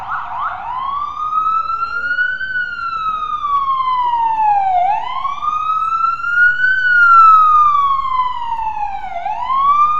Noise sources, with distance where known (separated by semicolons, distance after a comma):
siren, near; unidentified human voice